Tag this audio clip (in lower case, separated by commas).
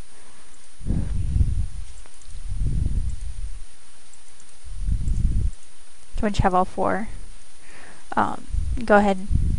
speech